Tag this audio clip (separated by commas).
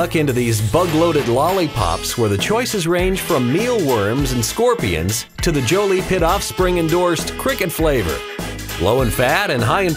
Music, Speech